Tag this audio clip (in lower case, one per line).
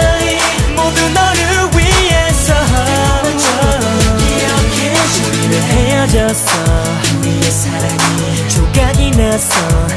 singing
music